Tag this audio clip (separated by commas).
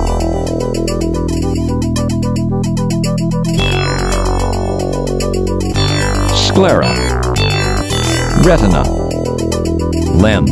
Music, Speech